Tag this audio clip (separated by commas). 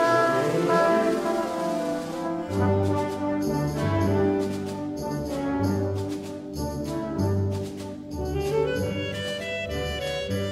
Brass instrument